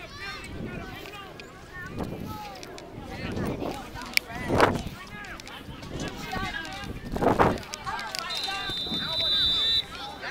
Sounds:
speech

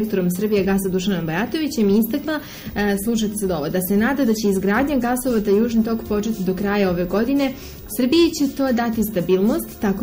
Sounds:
speech

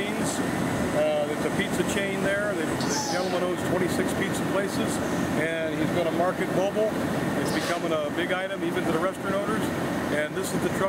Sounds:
speech

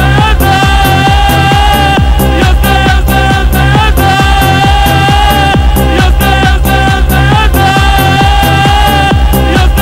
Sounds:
music, electronic music, techno

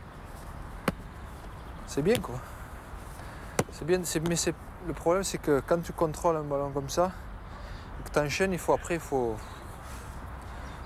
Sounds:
shot football

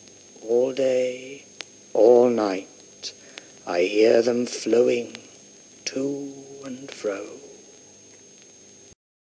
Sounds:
white noise, speech

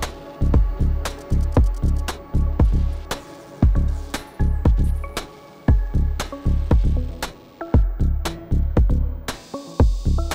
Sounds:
music

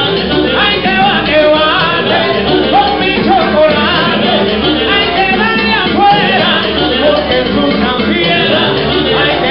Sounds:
music, speech

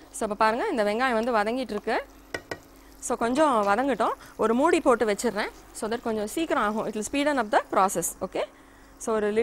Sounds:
inside a small room, speech

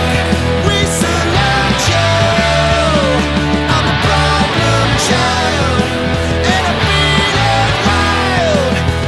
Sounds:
music

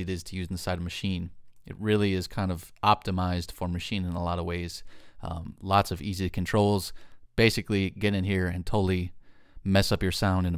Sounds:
speech

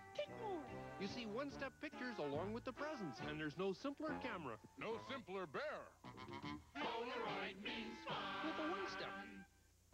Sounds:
speech

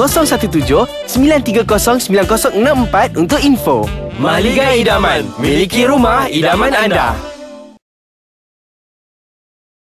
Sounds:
music, speech

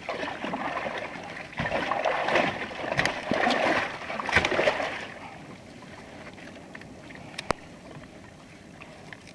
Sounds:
canoe, boat

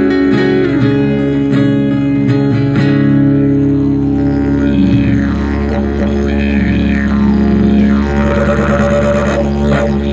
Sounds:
playing didgeridoo

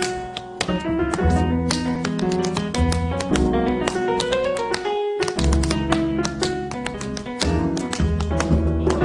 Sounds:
tap dancing

